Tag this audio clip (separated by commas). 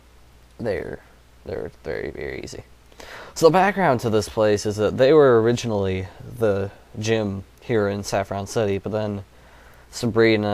Speech